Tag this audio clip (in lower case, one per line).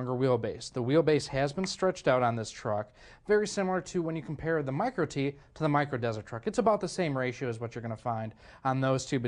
speech